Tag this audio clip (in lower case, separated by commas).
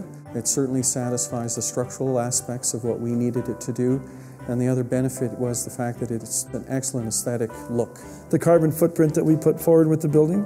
speech, music